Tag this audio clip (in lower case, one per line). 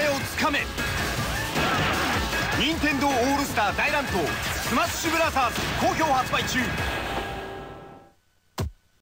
music
speech